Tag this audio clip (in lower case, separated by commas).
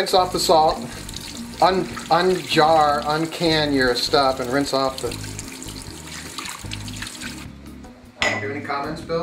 speech, sink (filling or washing), water, inside a small room, music